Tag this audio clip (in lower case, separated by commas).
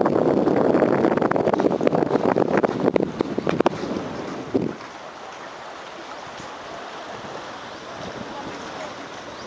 speech, outside, rural or natural, ocean